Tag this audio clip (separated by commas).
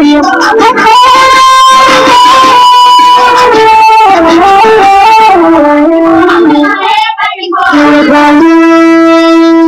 inside a small room, Music